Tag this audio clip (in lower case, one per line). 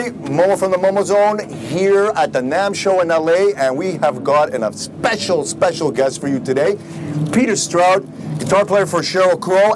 speech